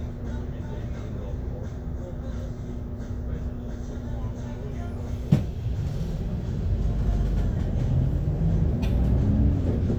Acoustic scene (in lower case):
bus